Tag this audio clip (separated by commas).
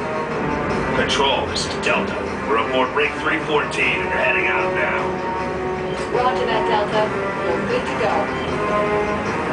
Music, Speech